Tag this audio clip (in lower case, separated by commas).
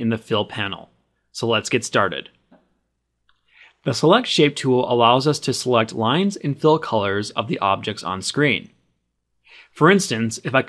speech